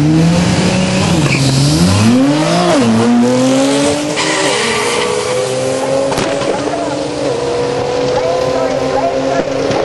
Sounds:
Tire squeal, Speech, Car, Race car, Vehicle

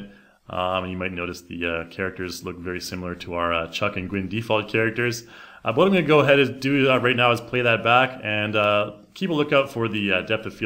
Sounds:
Speech

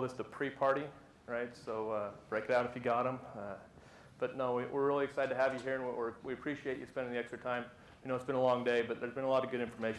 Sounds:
Speech

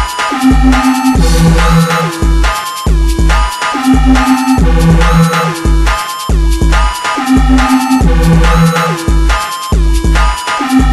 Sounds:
Music, Throbbing

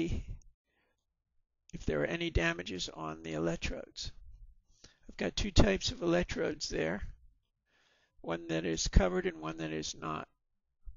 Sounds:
Speech

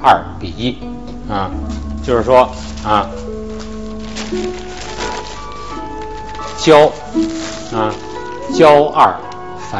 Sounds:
Speech, Music

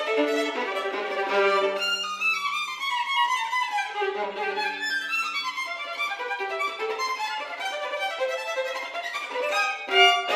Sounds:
fiddle, Pizzicato, Musical instrument, Music

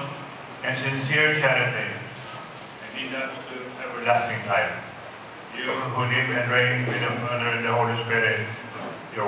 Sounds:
Speech

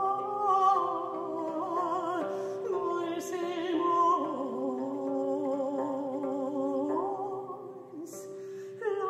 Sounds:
Plucked string instrument, Musical instrument, Harp, Music

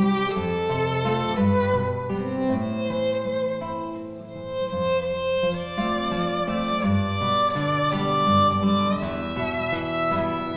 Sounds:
Bowed string instrument, Musical instrument, Music, Guitar, Violin

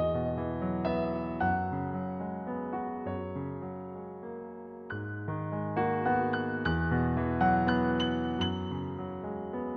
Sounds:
Music

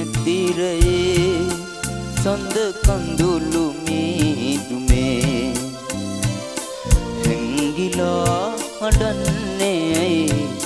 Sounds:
Male singing, Music

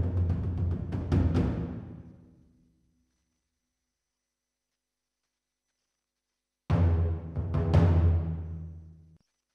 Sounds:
Percussion, Music

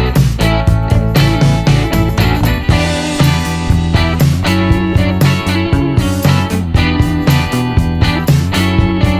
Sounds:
Music

